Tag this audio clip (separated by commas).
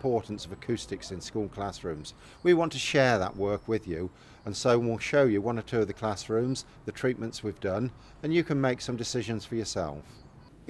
Speech